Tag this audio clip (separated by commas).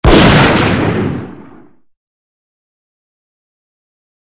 gunfire, Explosion